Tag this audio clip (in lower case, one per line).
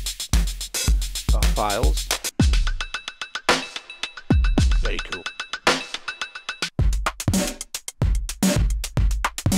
speech
drum machine
music